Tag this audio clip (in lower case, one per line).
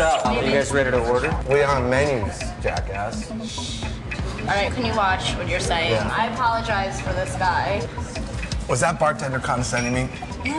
speech
music